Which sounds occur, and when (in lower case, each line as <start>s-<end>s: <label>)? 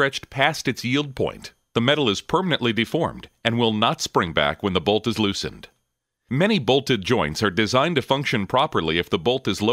0.0s-1.5s: male speech
0.0s-9.7s: background noise
1.7s-3.2s: male speech
3.4s-5.7s: male speech
6.2s-9.7s: male speech